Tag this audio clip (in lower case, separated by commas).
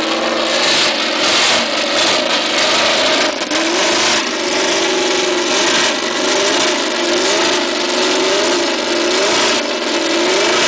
vehicle, revving